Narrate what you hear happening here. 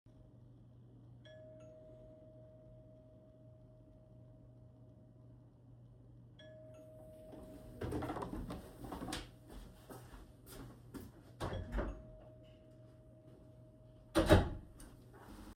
I was sitting at the table looking out the window, waiting for the food delivery guy, when he rang the doorbell. I got up, went to the door, opened it, took the food from the delivery guy, and closed the door.